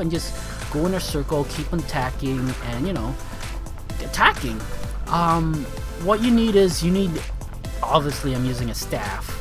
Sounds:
music, speech

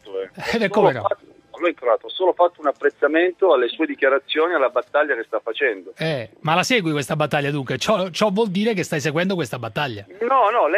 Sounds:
speech, radio

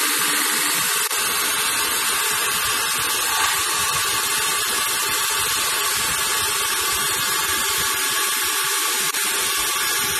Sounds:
lathe spinning

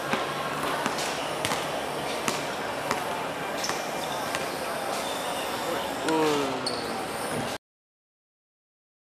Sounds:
speech

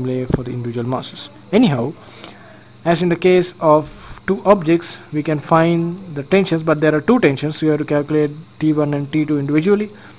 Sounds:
speech

